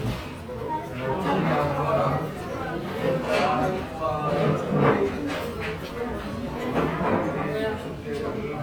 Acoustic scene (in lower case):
restaurant